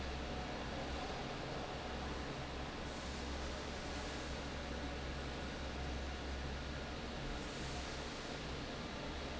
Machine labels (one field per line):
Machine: fan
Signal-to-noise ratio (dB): 0 dB